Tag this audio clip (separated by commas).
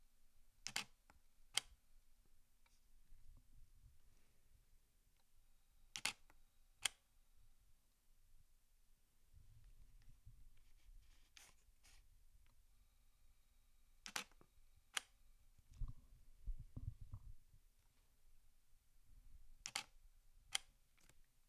Camera, Mechanisms